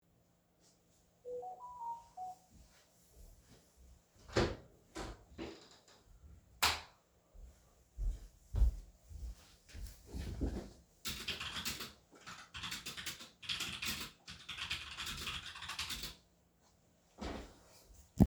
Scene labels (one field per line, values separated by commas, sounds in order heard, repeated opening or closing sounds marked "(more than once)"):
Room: office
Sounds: phone ringing, door, light switch, footsteps, keyboard typing